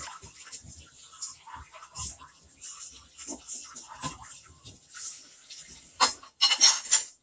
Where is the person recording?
in a kitchen